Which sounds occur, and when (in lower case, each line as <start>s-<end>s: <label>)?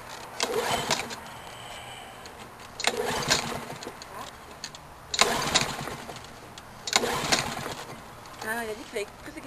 0.0s-9.4s: background noise
6.8s-7.9s: lawn mower
8.4s-8.4s: generic impact sounds